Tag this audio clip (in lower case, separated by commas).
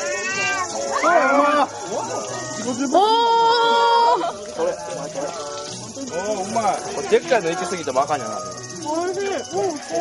crowd